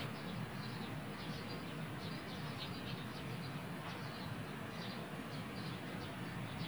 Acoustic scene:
park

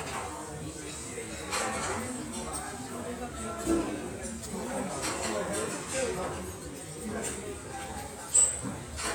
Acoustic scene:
restaurant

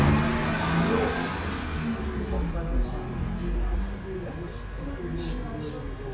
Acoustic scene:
residential area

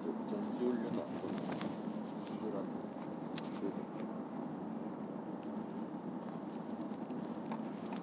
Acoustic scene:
car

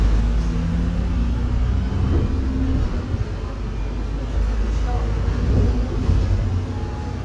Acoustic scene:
bus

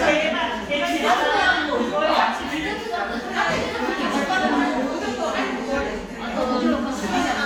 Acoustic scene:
crowded indoor space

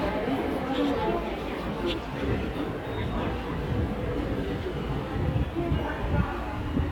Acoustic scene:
subway station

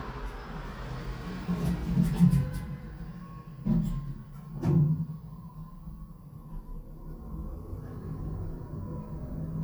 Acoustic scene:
elevator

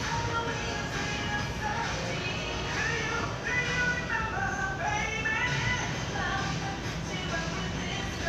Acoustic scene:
crowded indoor space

